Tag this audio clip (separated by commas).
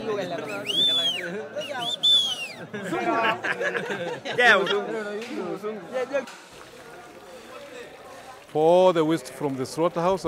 Speech